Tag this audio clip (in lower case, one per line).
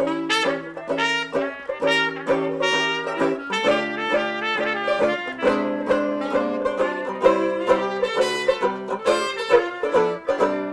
music